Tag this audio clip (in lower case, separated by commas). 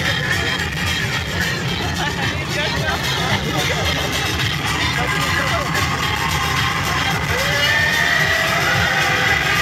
roller coaster running